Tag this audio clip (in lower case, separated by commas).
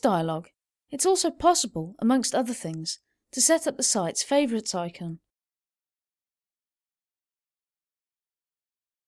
speech